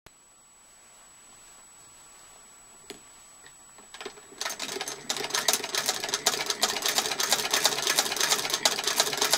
Rhythmic clicking is occurring